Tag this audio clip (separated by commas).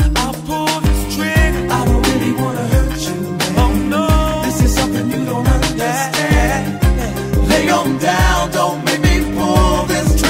Music, Reggae